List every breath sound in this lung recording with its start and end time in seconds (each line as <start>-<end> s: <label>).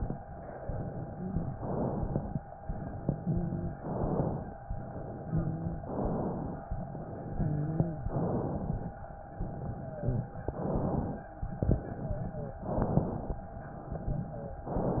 0.63-1.50 s: exhalation
1.08-1.50 s: wheeze
1.54-2.41 s: inhalation
2.68-3.74 s: exhalation
3.19-3.74 s: wheeze
3.78-4.54 s: inhalation
4.65-5.83 s: exhalation
5.26-5.83 s: wheeze
5.90-6.66 s: inhalation
6.93-8.10 s: exhalation
7.29-8.10 s: wheeze
8.08-8.94 s: inhalation
9.39-10.34 s: exhalation
9.73-10.34 s: wheeze
10.51-11.29 s: inhalation
11.46-12.62 s: exhalation
11.97-12.62 s: wheeze
12.66-13.43 s: inhalation
13.83-14.72 s: exhalation
14.31-14.72 s: wheeze